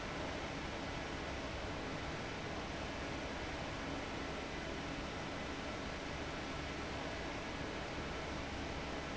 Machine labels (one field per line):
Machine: fan